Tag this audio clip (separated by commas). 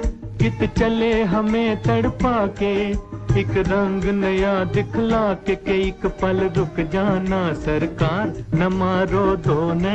Music of Bollywood